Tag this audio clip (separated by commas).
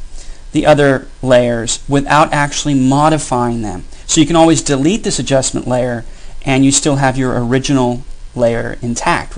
Speech